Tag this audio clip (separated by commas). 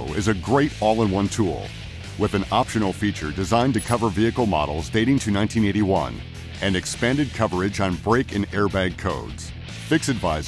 Music, Speech